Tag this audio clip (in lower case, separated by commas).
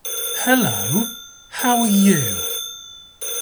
human voice, speech, man speaking